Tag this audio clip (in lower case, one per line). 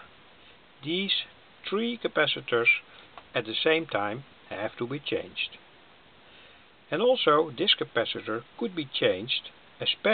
speech